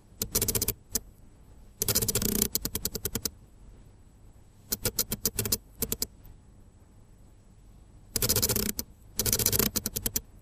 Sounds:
Camera, Mechanisms

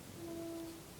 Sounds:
Vehicle, Train, Rail transport

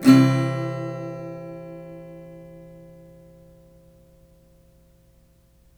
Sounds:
Musical instrument, Plucked string instrument, Strum, Acoustic guitar, Guitar, Music

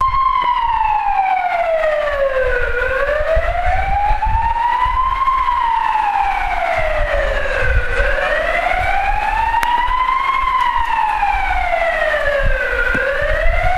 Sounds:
Motor vehicle (road), Siren, Alarm, Vehicle

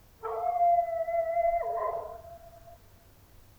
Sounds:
Domestic animals, Dog, Animal

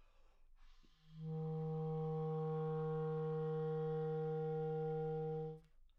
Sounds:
Musical instrument, Wind instrument, Music

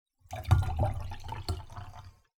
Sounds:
Liquid

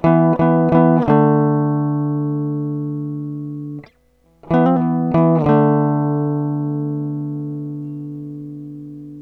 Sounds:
Music, Guitar, Musical instrument, Plucked string instrument

